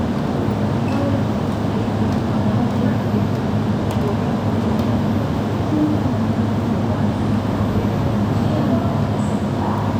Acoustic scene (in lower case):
subway station